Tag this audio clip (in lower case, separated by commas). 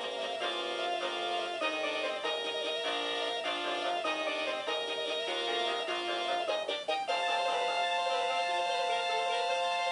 inside a small room, music